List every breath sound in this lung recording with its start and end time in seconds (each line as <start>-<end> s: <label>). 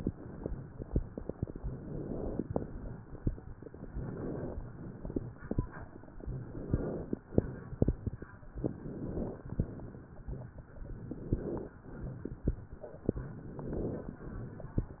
1.59-2.47 s: inhalation
2.47-3.07 s: exhalation
3.93-4.68 s: inhalation
4.73-5.47 s: exhalation
6.28-7.21 s: inhalation
7.38-8.24 s: exhalation
8.67-9.47 s: inhalation
9.47-10.25 s: exhalation
10.97-11.80 s: inhalation
11.84-12.58 s: exhalation
13.21-14.14 s: inhalation
14.14-15.00 s: exhalation